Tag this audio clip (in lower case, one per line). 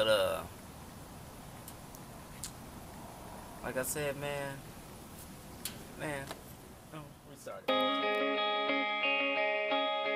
music
speech
inside a small room